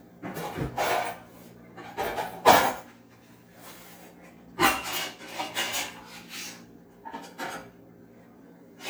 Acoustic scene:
kitchen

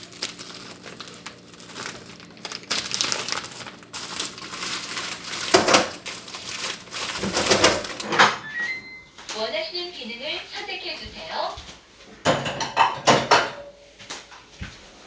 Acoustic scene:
kitchen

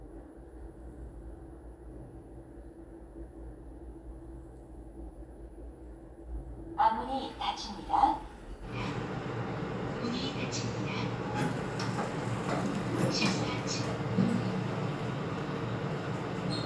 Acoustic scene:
elevator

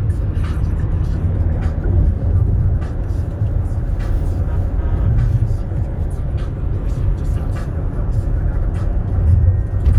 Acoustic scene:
car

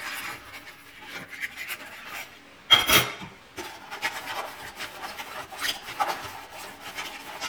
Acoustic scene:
kitchen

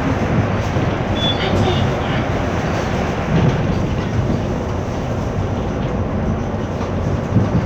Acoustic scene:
bus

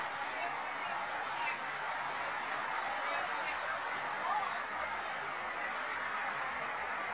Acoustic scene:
street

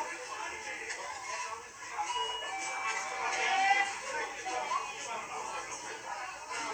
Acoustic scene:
crowded indoor space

